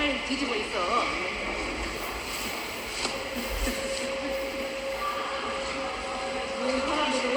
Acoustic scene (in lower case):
subway station